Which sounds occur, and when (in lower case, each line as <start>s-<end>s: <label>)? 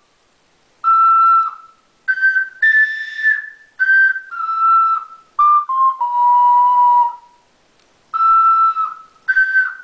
0.0s-9.8s: mechanisms
0.8s-1.8s: music
1.4s-1.5s: generic impact sounds
2.1s-3.5s: music
3.8s-5.1s: music
5.3s-7.2s: music
7.8s-7.8s: tick
8.1s-9.0s: music
8.9s-9.2s: generic impact sounds
9.3s-9.8s: music